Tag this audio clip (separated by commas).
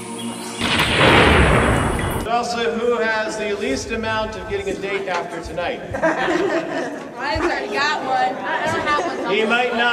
Music, inside a large room or hall, Chatter, Speech